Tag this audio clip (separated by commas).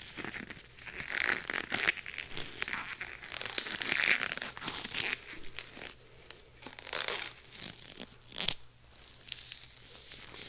inside a small room